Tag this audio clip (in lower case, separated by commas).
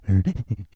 respiratory sounds, breathing